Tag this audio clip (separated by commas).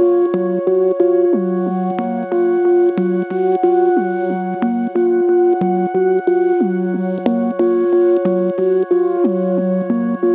Synthesizer, Music